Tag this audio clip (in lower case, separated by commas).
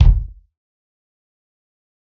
music, drum, musical instrument, percussion, bass drum